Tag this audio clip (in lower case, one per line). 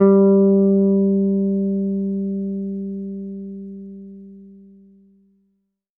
musical instrument
plucked string instrument
guitar
bass guitar
music